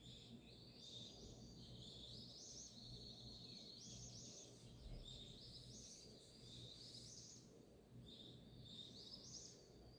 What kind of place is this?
park